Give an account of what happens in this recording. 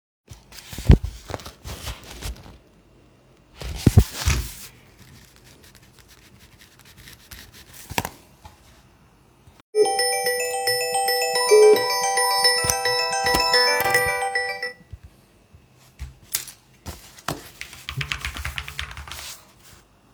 I was writing on notebook and typing on my computer while suddenly the phone started ringing